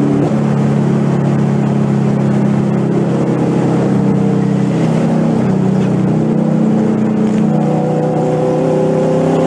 Car is driving by in the distance. The car shifts to a higher gear